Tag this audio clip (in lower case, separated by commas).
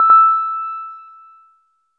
keyboard (musical), musical instrument, music, piano